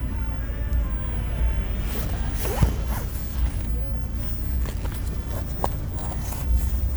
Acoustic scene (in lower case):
bus